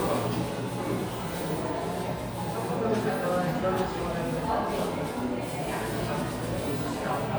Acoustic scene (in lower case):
crowded indoor space